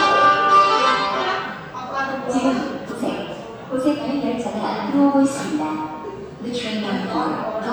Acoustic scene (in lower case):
subway station